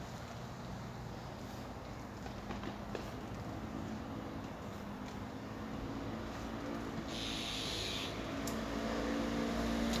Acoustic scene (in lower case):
street